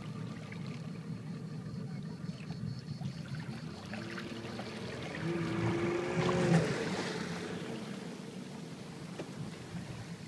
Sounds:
vehicle, water vehicle

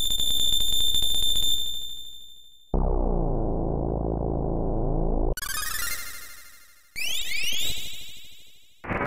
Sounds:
sound effect, music

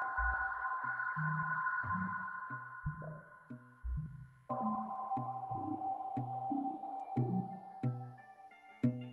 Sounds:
music, sonar

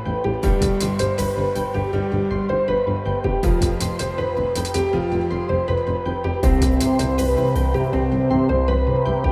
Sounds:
music

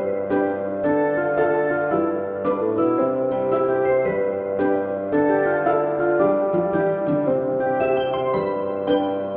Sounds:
music, glockenspiel

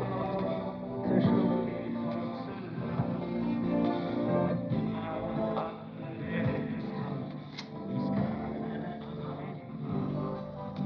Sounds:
music

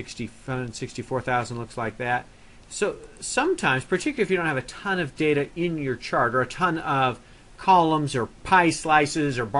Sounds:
speech

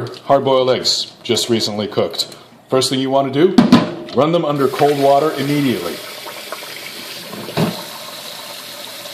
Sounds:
sink (filling or washing), speech

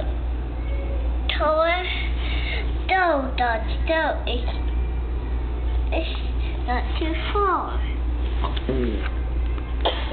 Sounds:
speech

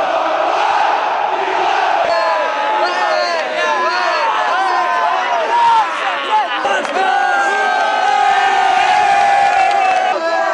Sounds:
crowd

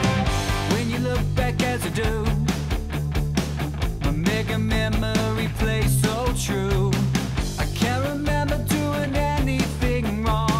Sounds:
music, rhythm and blues

